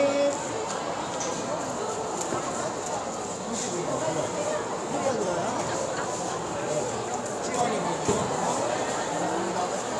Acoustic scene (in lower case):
cafe